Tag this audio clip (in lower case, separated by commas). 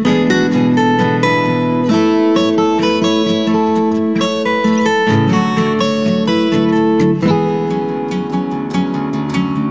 acoustic guitar, plucked string instrument, guitar, musical instrument, music